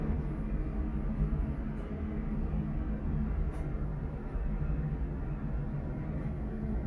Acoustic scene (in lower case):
elevator